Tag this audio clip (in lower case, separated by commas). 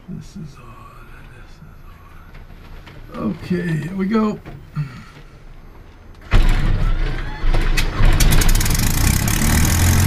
speech